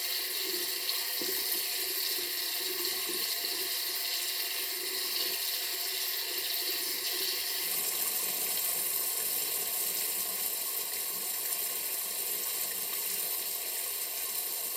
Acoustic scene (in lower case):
restroom